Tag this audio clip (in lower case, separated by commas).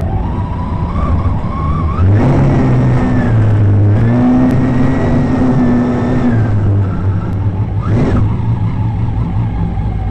motorboat, vehicle